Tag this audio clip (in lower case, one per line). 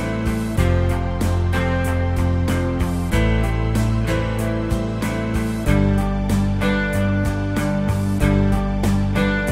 music